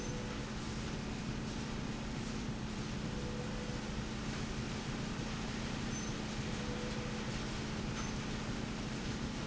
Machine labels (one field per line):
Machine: slide rail